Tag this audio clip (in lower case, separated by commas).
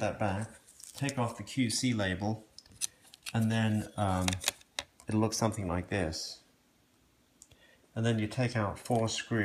speech